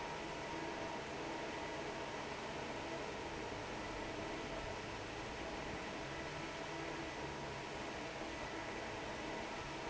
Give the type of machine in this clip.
fan